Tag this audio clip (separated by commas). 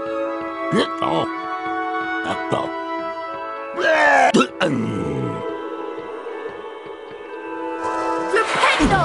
outside, rural or natural, Speech, Music